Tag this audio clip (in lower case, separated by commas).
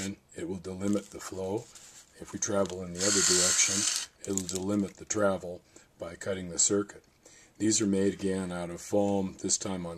inside a small room, speech